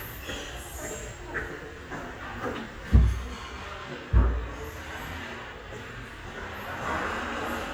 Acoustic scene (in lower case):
restaurant